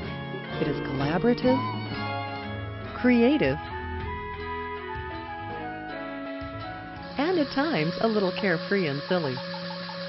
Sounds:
speech
music

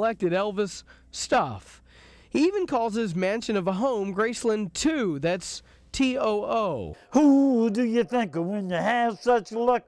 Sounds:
speech

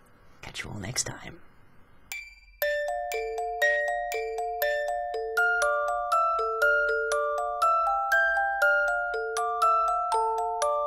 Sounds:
glockenspiel

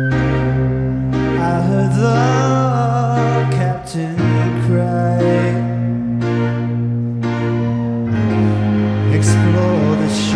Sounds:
music

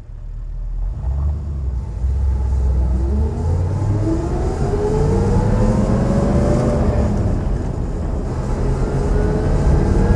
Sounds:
car
accelerating
vehicle

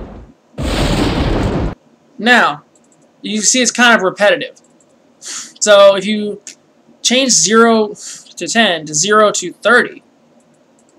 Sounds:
speech

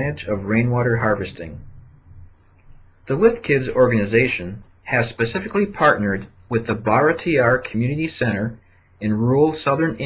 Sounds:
speech

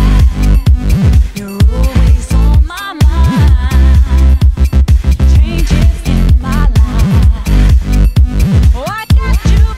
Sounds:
music

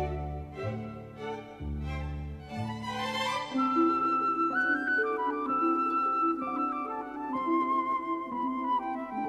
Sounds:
music

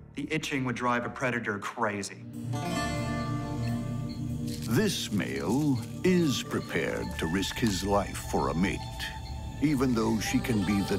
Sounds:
music
speech

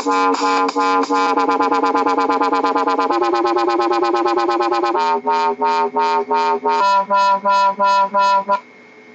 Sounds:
speech
music
electronic music
dubstep

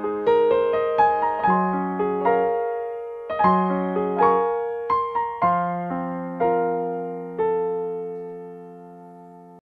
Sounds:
soul music
music
theme music

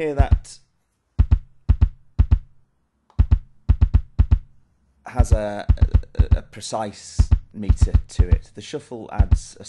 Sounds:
speech
drum machine
music

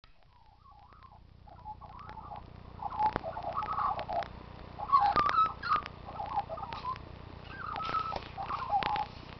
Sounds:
magpie calling

